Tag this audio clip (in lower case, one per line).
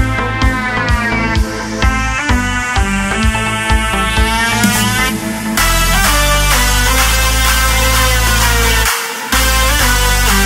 music